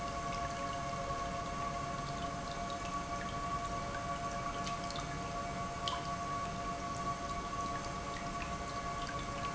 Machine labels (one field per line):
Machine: pump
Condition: normal